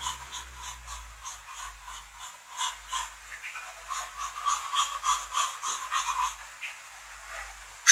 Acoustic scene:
restroom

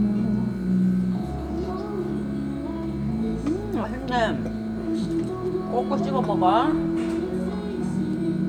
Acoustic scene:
restaurant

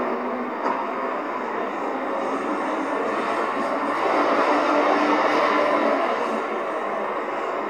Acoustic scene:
street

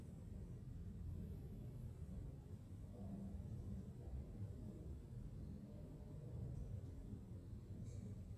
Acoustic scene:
elevator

